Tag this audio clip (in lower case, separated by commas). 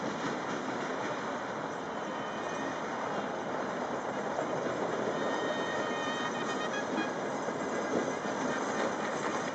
clip-clop, music